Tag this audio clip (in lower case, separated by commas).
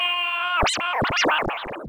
scratching (performance technique), music, musical instrument